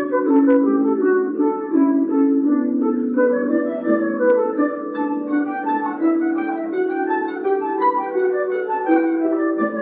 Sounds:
music, soundtrack music

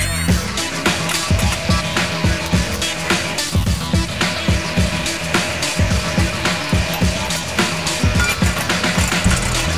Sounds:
music

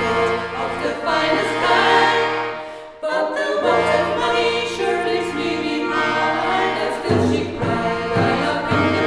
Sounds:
a capella, music, vocal music

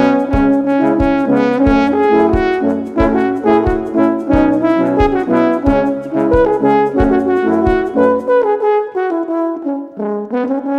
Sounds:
playing french horn

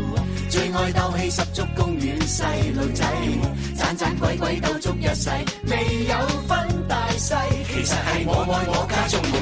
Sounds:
house music, music

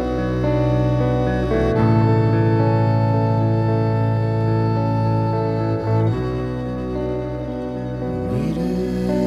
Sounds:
music

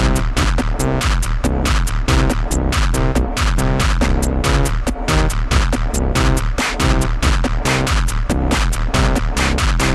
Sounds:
electronic dance music, music, electronic music, sampler

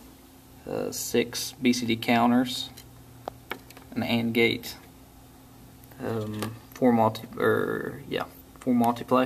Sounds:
speech

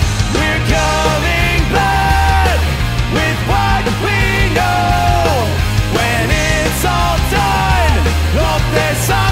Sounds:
punk rock, singing, music

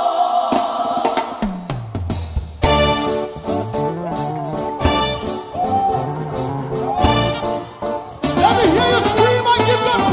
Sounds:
gospel music, exciting music, music

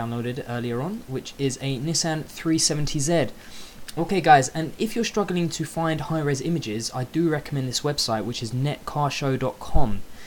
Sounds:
speech

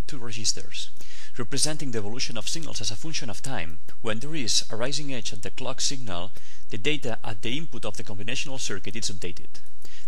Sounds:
speech

